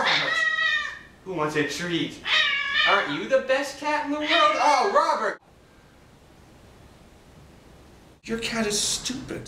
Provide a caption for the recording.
A cat meows, a man speaks